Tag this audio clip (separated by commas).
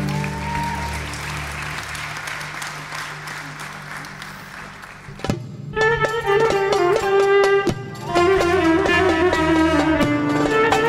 Orchestra